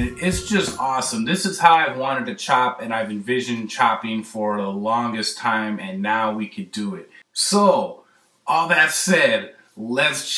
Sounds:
Speech, Music

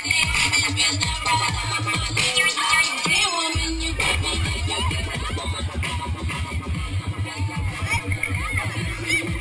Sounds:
Speech, Music

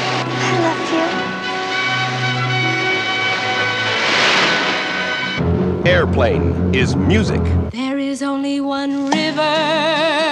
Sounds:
airplane

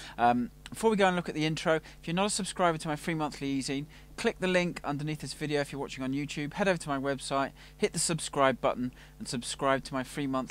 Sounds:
Speech

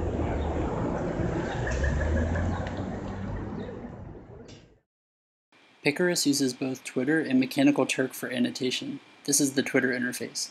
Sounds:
Speech

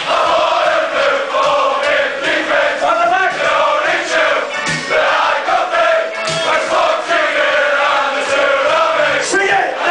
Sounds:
Music, Speech

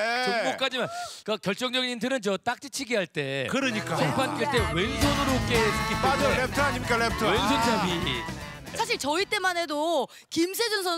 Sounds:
playing volleyball

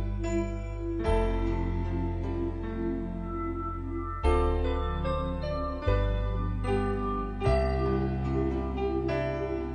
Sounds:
Music, Harpsichord

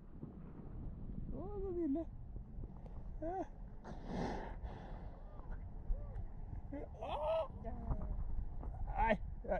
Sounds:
whale calling

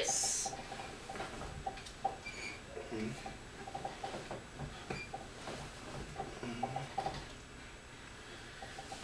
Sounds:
Speech

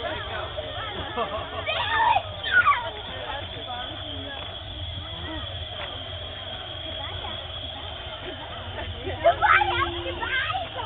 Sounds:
Speech

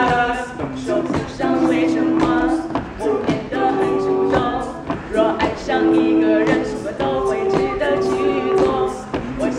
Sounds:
Music

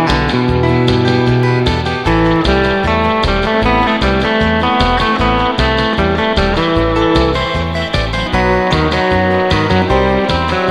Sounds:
slide guitar

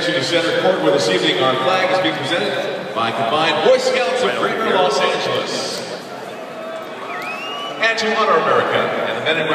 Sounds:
Speech

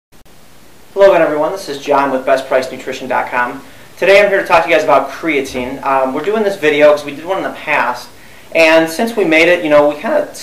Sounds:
Speech, inside a small room

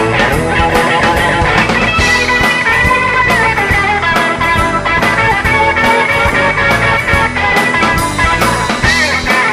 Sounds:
Ska, Music

